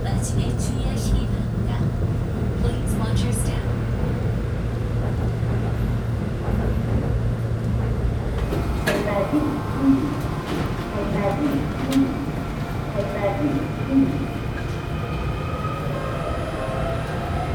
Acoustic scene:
subway train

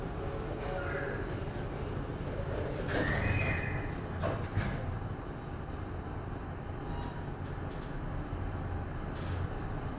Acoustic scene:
elevator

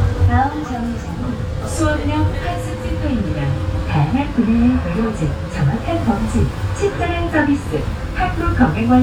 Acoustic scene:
bus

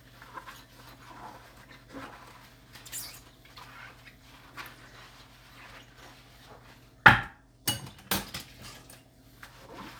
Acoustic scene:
kitchen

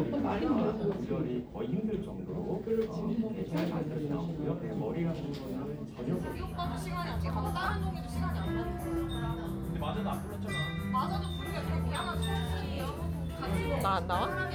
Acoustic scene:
crowded indoor space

